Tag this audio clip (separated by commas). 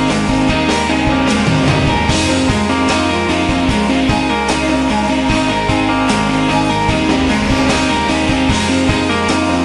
Musical instrument, Music, Drum, Drum kit